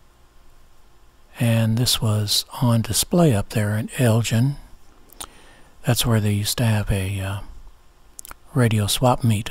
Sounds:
speech

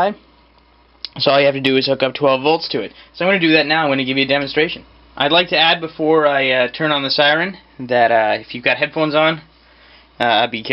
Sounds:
speech

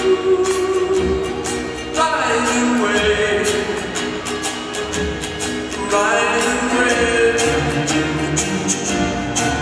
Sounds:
music

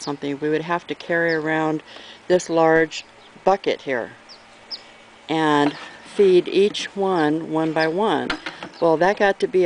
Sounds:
bird call
tweet
bird

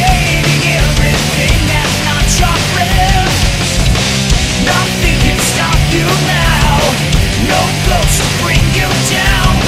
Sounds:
music

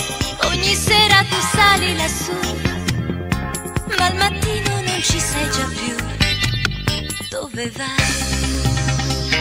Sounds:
music

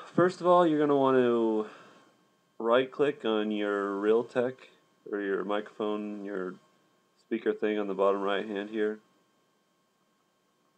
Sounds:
speech

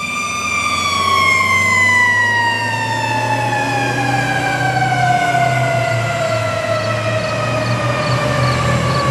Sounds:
vehicle
engine
revving

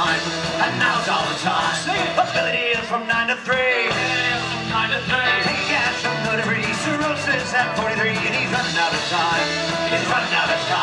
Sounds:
music
violin
musical instrument
speech

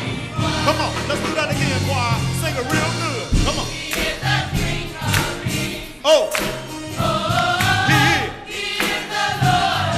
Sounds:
male singing
speech
music
female singing
choir

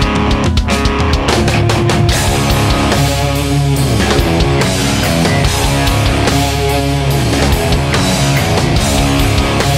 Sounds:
music

